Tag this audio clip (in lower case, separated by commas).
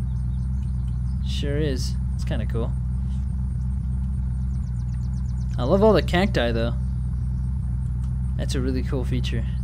speech, vehicle, outside, rural or natural